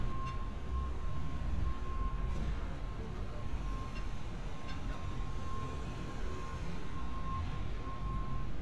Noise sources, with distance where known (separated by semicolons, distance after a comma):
reverse beeper, far